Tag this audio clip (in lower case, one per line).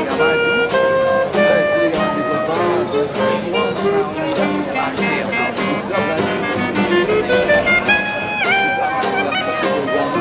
speech
music